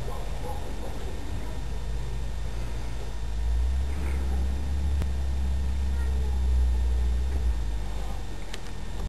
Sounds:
Animal, Domestic animals, Cat

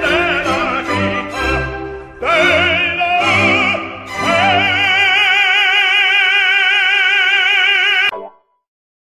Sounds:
Music

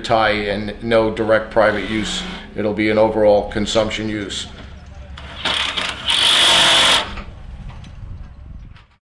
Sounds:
outside, rural or natural, Speech

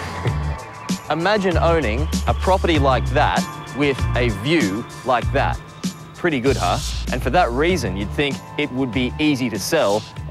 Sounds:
Speech, Music

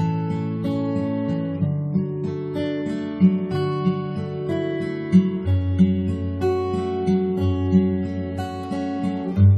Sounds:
Musical instrument, Music, Plucked string instrument, Guitar, Acoustic guitar

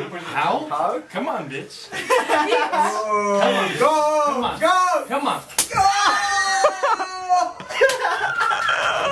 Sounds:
inside a small room, Speech, Screaming, smack

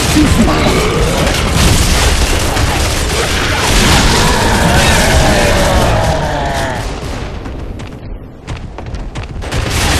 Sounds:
Speech

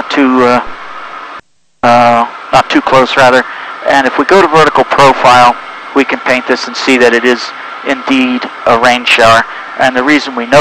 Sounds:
Speech

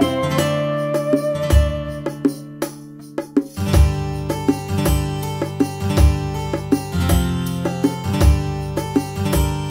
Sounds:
Tender music, Music

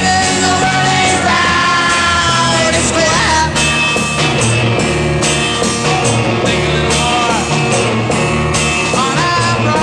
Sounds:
Rock and roll, Roll, Music

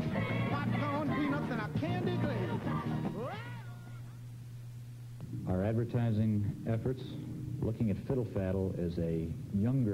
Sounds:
Speech, Music

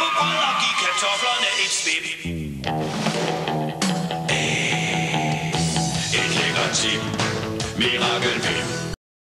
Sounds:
Music

